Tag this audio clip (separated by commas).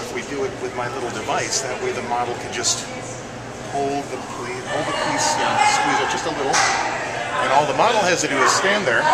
Speech